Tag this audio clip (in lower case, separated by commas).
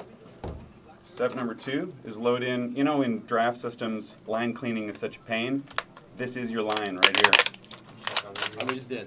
tap, speech